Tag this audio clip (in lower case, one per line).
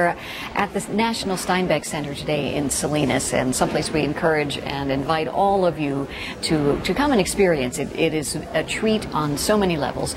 speech